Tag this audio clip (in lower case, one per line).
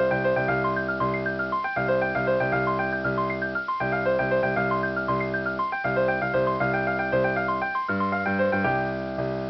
music